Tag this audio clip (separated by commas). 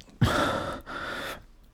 Respiratory sounds, Breathing